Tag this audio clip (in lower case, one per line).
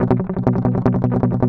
music
musical instrument
strum
guitar
plucked string instrument